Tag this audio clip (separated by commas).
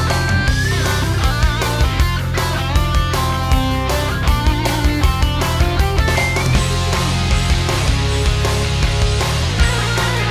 Music